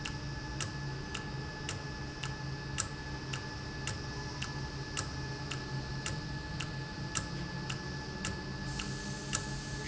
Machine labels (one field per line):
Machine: valve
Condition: normal